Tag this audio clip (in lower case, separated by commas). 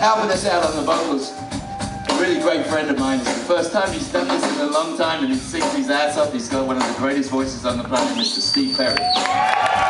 drum, drum kit, music, musical instrument, speech